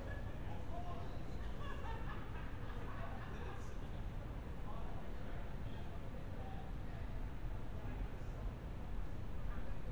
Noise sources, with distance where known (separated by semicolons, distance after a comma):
person or small group talking, far